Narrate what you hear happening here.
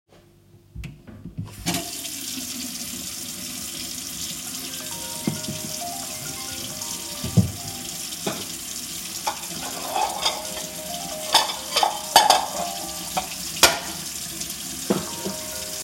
I turned on the tap and ran water in the sink. While the water was running my phone started ringing. I began clanking dishes while both the water and phone were still going simultaneously.